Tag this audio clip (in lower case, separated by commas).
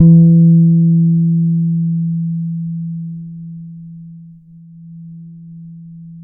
bass guitar, musical instrument, music, plucked string instrument, guitar